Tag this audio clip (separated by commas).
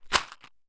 Rattle